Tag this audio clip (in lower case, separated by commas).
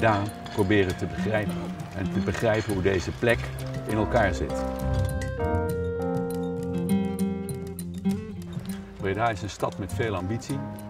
music, speech